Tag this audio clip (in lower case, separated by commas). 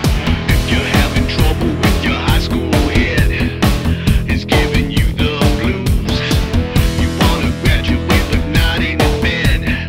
music